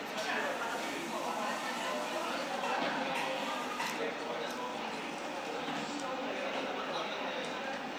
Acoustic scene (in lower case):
cafe